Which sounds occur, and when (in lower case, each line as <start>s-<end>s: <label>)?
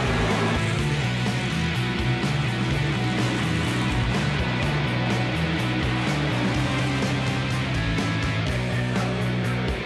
0.0s-9.8s: music
8.4s-9.8s: singing